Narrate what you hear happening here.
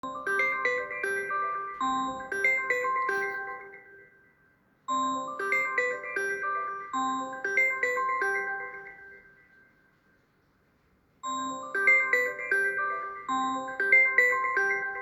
i was in bed and have a call from my home.